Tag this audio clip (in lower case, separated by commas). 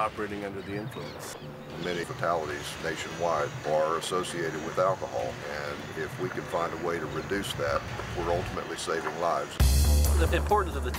speech, music